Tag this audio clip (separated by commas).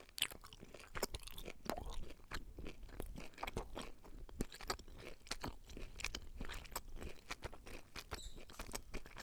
mastication